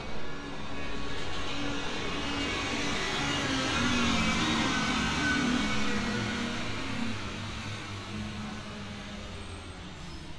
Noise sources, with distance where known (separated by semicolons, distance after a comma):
unidentified powered saw, near